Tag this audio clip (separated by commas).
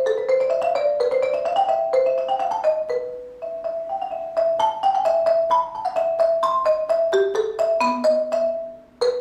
Marimba, Music, Musical instrument